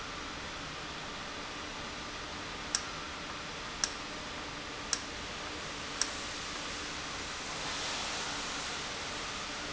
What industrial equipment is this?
valve